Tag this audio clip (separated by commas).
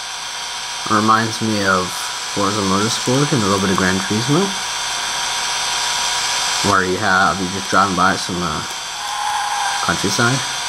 Car, Race car, Speech, Vehicle